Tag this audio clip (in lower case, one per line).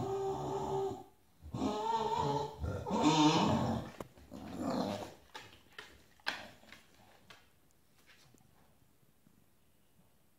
dog growling